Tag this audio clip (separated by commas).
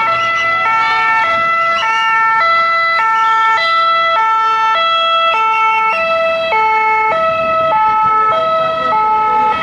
civil defense siren